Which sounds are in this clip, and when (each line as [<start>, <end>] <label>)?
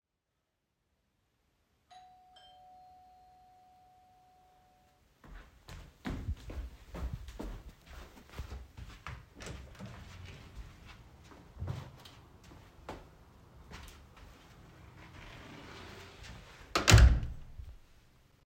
[1.85, 5.08] bell ringing
[5.24, 9.31] footsteps
[9.35, 10.92] door
[11.20, 14.57] footsteps
[15.00, 17.33] door
[15.73, 16.32] footsteps